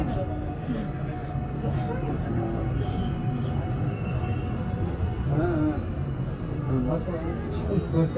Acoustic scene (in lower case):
subway train